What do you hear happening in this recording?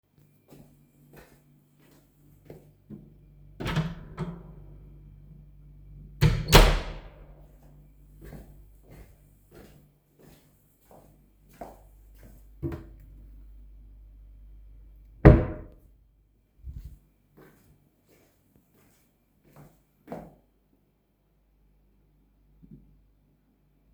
A person walks to the door opens it and then closes it. Walks to the drawer, and alos opens and then closes it.